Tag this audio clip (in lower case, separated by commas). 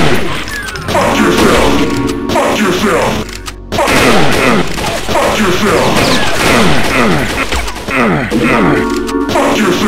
speech, music